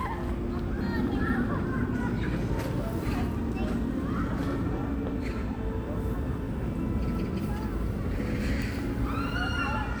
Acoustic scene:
park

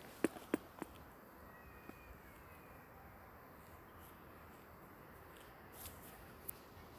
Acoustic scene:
park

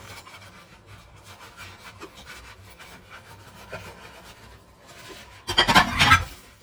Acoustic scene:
kitchen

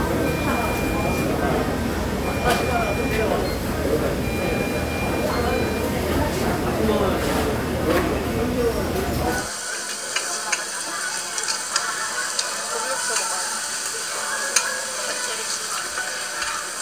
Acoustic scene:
restaurant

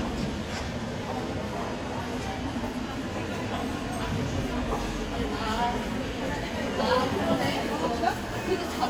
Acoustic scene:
crowded indoor space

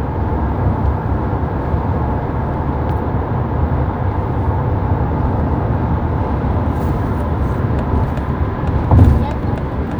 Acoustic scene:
car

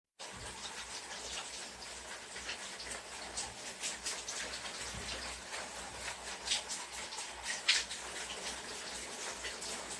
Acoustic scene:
restroom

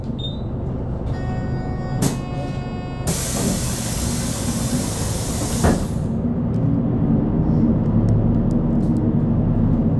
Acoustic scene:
bus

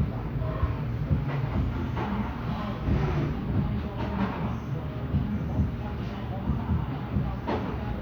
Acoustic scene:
cafe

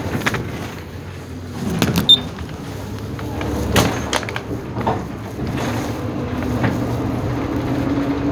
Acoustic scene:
bus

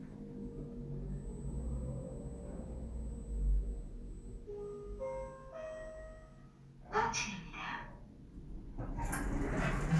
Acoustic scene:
elevator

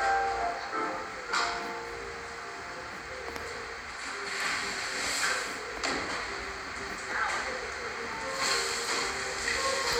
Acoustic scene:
cafe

